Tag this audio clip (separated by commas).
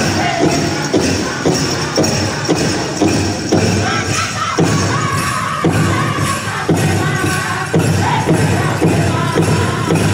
Music